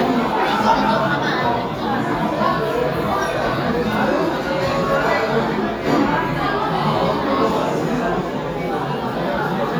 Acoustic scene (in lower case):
restaurant